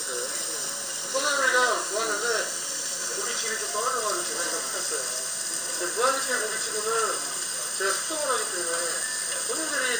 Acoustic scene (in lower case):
restaurant